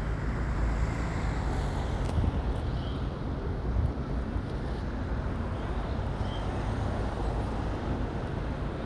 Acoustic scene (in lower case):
residential area